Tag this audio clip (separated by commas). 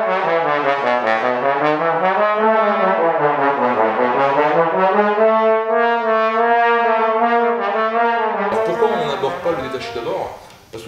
Trombone, Speech, Music, Brass instrument